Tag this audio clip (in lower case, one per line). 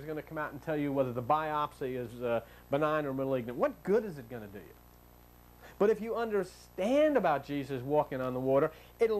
speech